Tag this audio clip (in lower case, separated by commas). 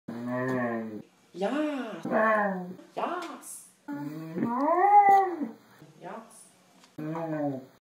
speech, yip